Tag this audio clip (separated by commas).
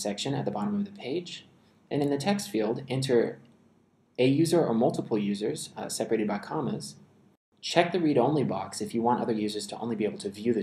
Speech